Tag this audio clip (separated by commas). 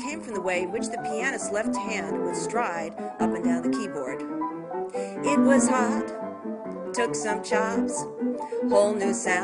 Music, Speech